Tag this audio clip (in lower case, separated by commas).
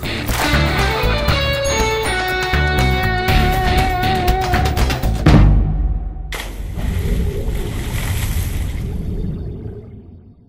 music